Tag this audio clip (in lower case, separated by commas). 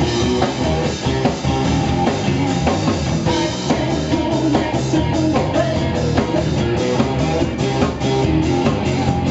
blues, music